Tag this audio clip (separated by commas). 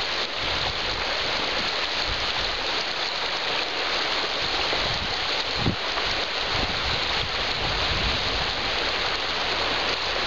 Water, Stream, stream burbling